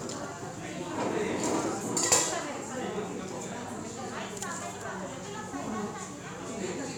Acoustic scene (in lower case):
cafe